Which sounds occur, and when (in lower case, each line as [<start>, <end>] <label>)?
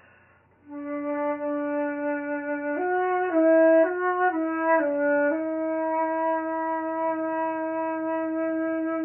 [0.00, 0.39] breathing
[0.00, 9.04] background noise
[0.58, 9.04] music